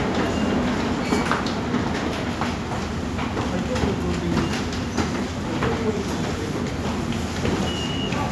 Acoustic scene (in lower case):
subway station